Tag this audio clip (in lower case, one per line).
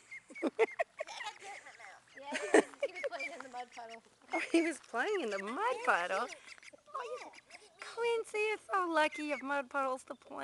speech